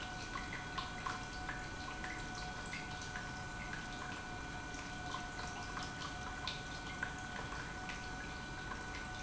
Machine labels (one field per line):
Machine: pump